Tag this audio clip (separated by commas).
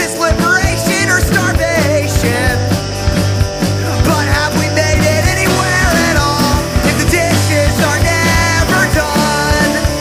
Music